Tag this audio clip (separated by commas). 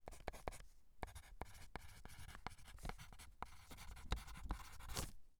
Writing, Domestic sounds